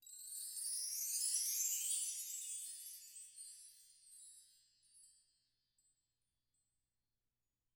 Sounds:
wind chime, chime, bell

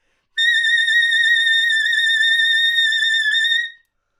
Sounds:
music, wind instrument, musical instrument

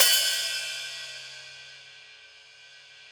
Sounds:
percussion, musical instrument, cymbal, music, hi-hat

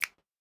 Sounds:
hands, finger snapping

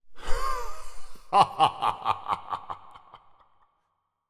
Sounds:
laughter, human voice

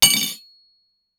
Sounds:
domestic sounds, cutlery, dishes, pots and pans

